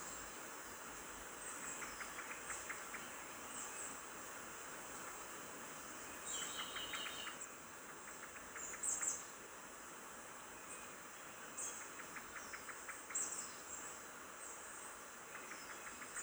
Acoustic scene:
park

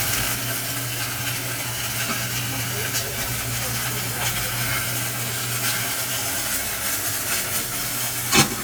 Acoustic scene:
kitchen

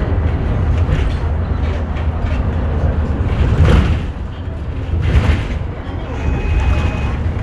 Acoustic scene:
bus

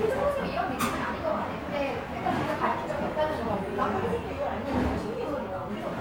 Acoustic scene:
restaurant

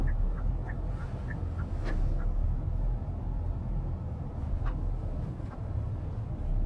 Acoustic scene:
car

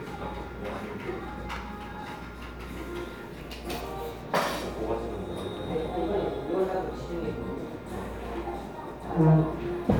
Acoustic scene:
cafe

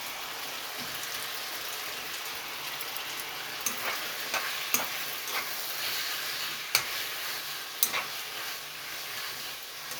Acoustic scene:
kitchen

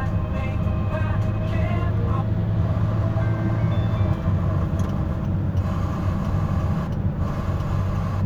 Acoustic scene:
car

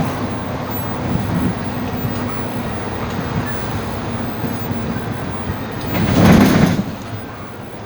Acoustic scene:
bus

